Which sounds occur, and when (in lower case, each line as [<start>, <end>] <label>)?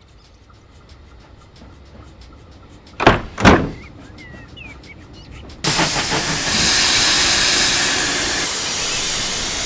[0.00, 9.65] train
[0.00, 9.65] wind
[2.95, 3.27] slam
[3.36, 3.73] slam
[3.66, 3.84] tweet
[4.02, 4.41] tweet
[4.51, 4.74] tweet
[4.82, 5.43] tweet
[5.58, 9.65] steam